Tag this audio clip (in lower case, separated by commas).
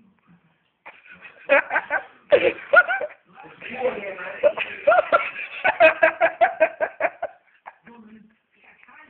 speech, male speech